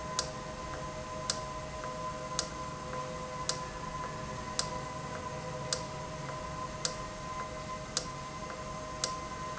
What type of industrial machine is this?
valve